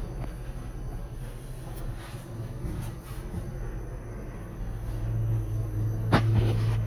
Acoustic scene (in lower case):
subway station